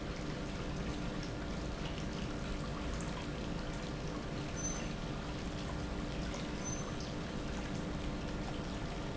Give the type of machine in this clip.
pump